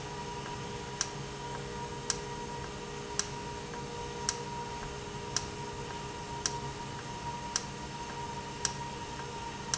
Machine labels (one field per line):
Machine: valve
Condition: normal